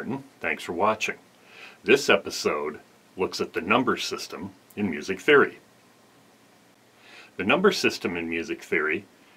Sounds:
Speech

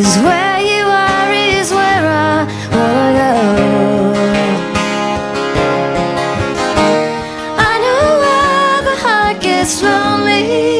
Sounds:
Music

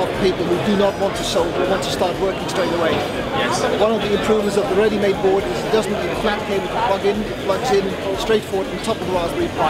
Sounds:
Music, Speech

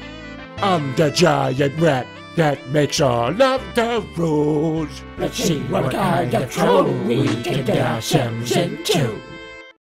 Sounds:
Speech, Music

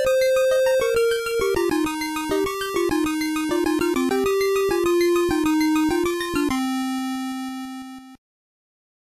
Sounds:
Video game music, Music

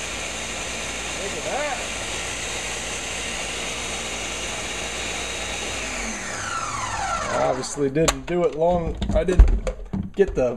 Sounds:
Blender, Speech

